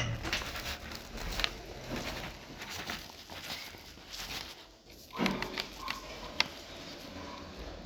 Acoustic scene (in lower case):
elevator